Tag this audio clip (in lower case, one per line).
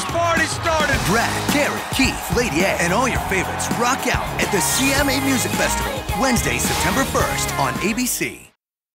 theme music
music
speech